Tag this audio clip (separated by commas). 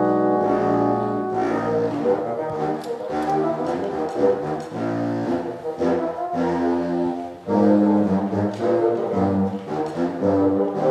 playing bassoon